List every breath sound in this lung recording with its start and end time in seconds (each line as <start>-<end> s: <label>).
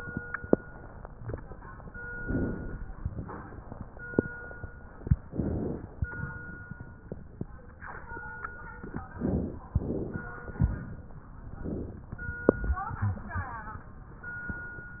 2.20-2.92 s: inhalation
5.29-6.02 s: inhalation
9.15-9.70 s: inhalation
9.73-10.29 s: inhalation
10.59-11.14 s: exhalation
11.54-12.09 s: inhalation